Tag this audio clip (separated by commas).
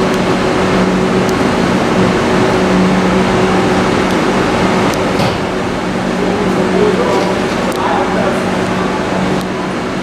Speech